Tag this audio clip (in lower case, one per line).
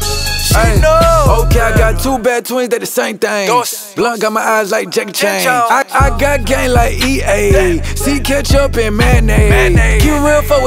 background music
music